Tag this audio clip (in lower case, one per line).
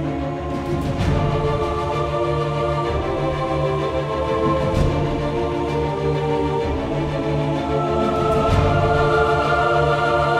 music